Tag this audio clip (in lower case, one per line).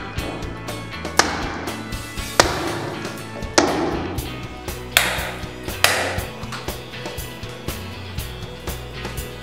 music
smash